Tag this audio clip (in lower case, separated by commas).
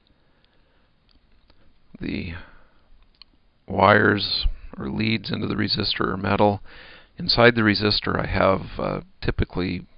speech